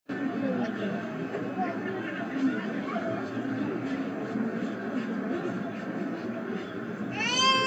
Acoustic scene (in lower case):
residential area